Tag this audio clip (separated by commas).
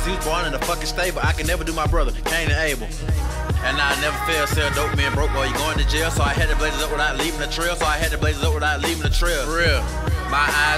Music, Funk, Jazz